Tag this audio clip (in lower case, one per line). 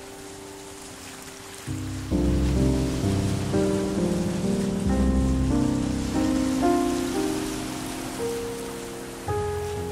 stream
music